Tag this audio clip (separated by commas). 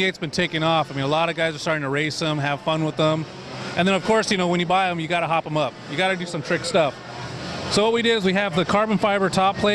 Speech